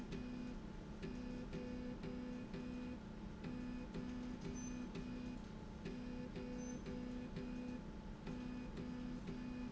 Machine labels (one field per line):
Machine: slide rail